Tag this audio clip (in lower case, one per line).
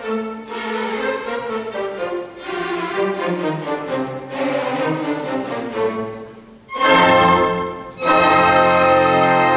classical music
music